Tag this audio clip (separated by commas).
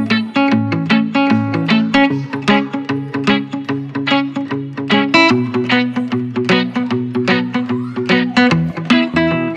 Music